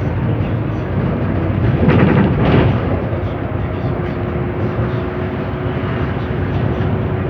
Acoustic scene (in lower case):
bus